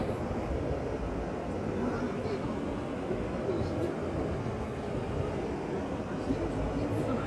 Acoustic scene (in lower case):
park